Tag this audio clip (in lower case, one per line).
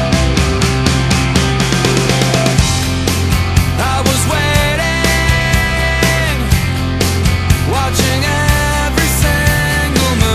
grunge